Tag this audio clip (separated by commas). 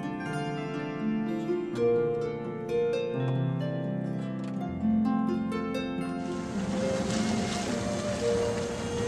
Harp, Pizzicato